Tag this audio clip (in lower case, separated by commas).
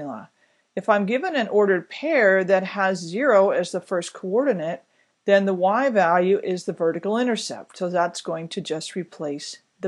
speech